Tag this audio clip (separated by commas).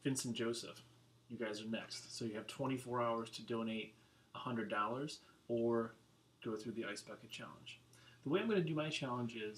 Speech